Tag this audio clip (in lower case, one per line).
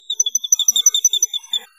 wild animals
bird vocalization
chirp
animal
bird